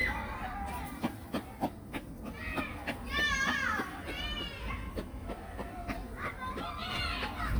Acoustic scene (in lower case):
park